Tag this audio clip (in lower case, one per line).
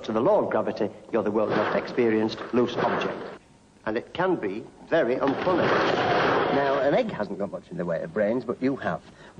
speech